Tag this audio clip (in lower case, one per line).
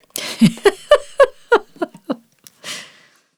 human voice
laughter
giggle